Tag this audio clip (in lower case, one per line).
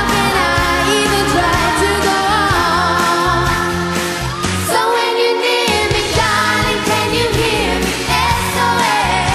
pop music
singing
music